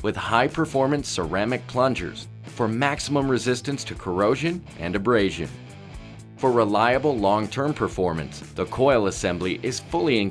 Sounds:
music, speech

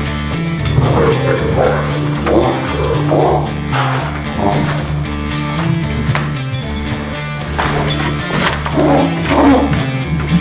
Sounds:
yip, music, bow-wow

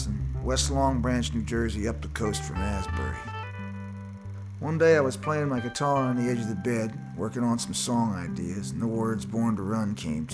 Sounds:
music, speech

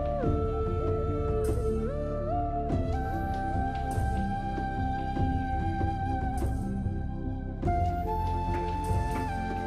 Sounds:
music

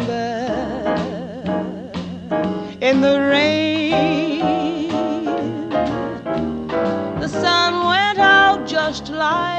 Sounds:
music

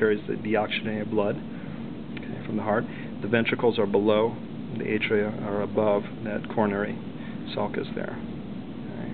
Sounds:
speech

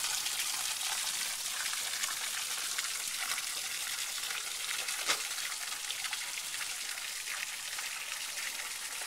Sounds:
raindrop

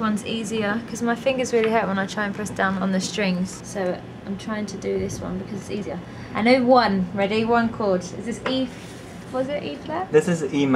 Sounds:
speech

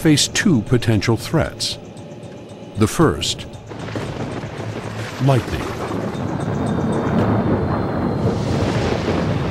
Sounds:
speech

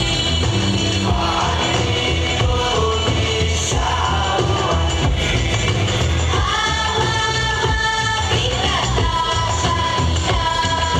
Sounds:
music

